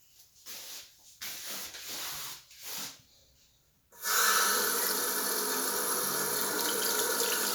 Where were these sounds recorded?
in a restroom